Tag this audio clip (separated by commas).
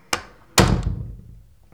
Domestic sounds, Door, Slam